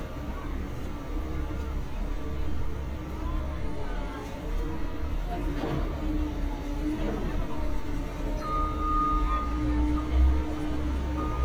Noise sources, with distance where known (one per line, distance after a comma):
reverse beeper, near
unidentified human voice, far